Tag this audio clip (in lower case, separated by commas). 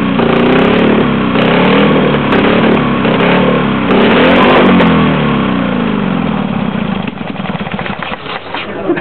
revving, heavy engine (low frequency), engine